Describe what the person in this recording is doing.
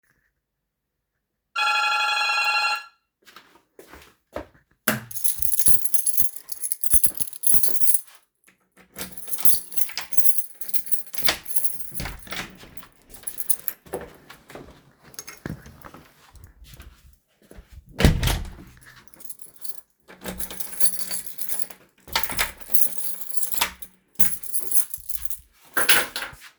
I heard the doorbell ringing, I went to the hallway, took my keys, and opened the door.Then I closed the door and placed the keys on the shelf.